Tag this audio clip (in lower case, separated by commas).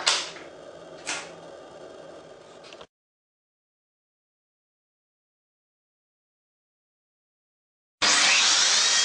power tool, tools, drill